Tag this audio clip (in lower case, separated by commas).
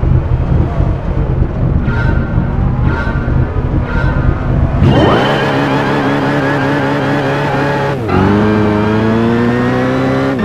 car, vehicle, motor vehicle (road)